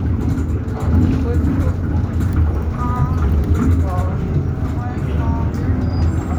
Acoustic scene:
bus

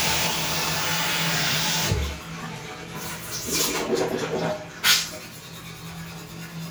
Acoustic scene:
restroom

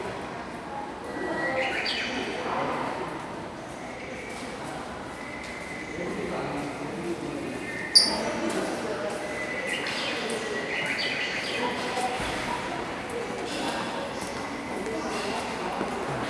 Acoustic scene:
subway station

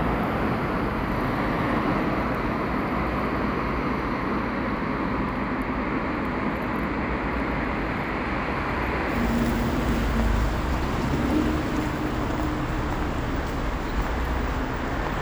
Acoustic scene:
street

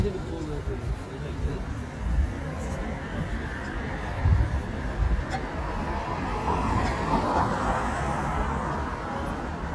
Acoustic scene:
street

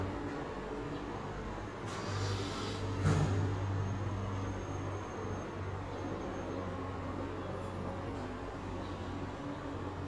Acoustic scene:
residential area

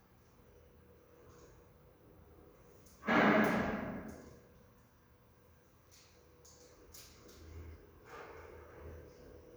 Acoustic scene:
elevator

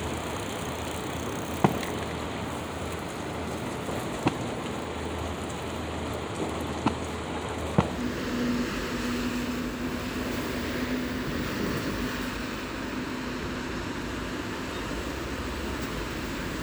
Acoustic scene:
street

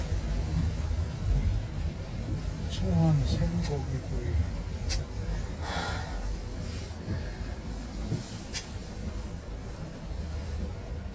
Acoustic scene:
car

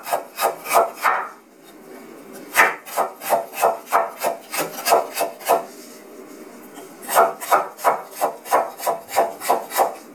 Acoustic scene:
kitchen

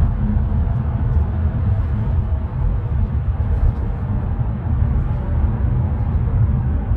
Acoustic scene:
car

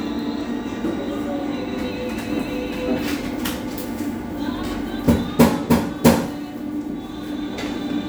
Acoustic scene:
cafe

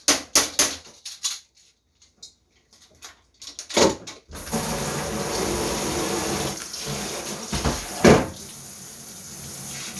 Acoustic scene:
kitchen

